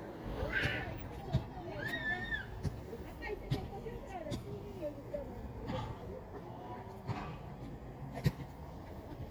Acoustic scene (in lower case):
park